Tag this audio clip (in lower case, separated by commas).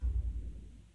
thump